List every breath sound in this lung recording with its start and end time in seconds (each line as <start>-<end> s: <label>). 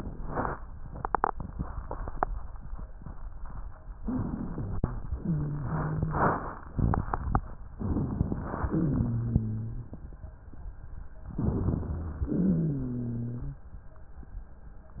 4.02-5.07 s: inhalation
5.14-6.40 s: exhalation
5.14-6.40 s: wheeze
7.74-8.67 s: inhalation
8.69-9.94 s: exhalation
8.69-9.94 s: wheeze
11.31-12.24 s: inhalation
12.37-13.62 s: exhalation
12.37-13.62 s: wheeze